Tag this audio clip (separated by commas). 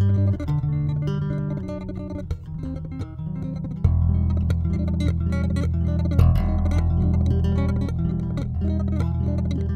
Music